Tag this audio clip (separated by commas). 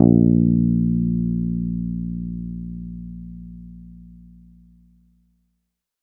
Music, Bass guitar, Plucked string instrument, Guitar, Musical instrument